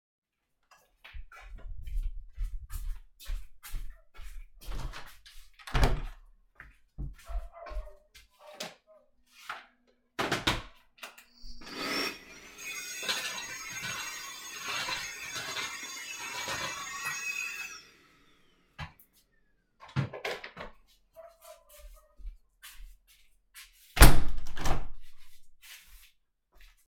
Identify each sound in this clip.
footsteps, door, vacuum cleaner, window